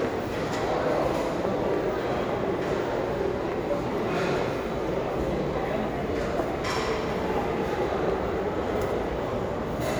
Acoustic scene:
restaurant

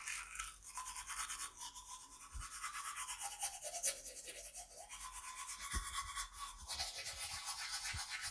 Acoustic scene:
restroom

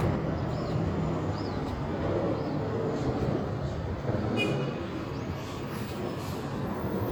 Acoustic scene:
street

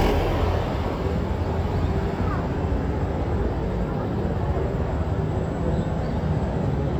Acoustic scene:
street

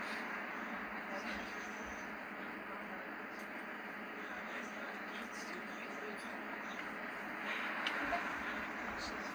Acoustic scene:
bus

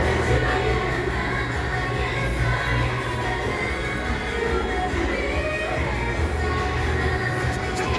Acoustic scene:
crowded indoor space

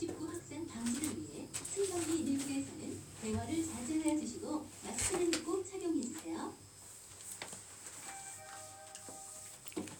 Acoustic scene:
elevator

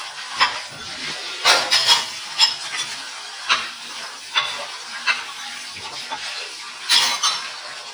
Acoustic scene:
kitchen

